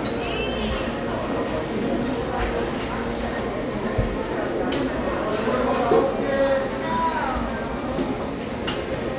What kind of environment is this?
restaurant